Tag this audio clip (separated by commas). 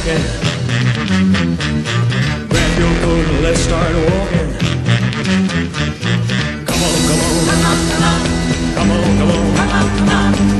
Music